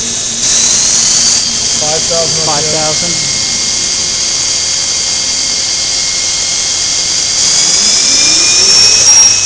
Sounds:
Speech

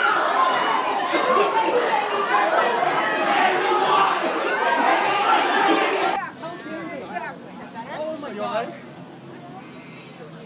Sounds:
Speech

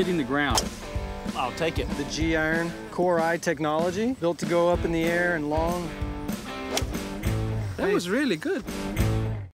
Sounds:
Speech, Music

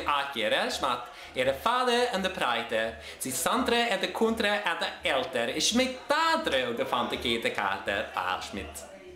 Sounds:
Speech

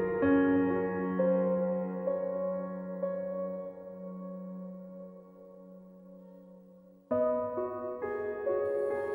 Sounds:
Music

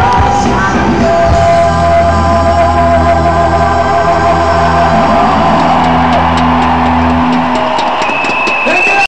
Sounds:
Speech, Disco, Music

